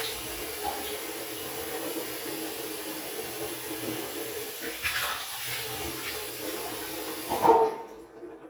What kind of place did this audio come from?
restroom